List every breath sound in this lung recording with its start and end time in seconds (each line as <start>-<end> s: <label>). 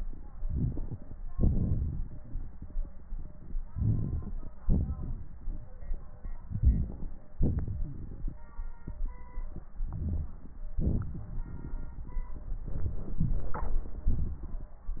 0.39-1.15 s: inhalation
1.33-2.53 s: exhalation
1.33-2.53 s: crackles
3.70-4.51 s: inhalation
3.70-4.51 s: crackles
4.66-5.28 s: exhalation
6.46-7.10 s: inhalation
7.37-8.37 s: exhalation
7.39-8.38 s: crackles
9.79-10.68 s: inhalation
10.75-12.31 s: exhalation
10.75-12.31 s: crackles